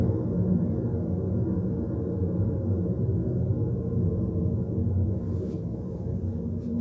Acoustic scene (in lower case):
car